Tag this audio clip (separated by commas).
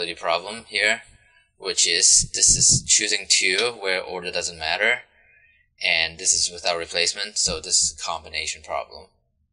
Speech